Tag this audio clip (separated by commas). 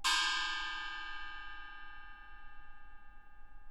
Gong, Music, Musical instrument, Percussion